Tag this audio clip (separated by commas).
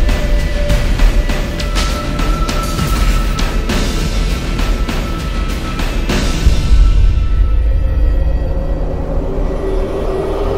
Music